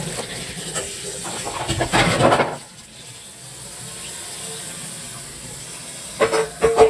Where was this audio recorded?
in a kitchen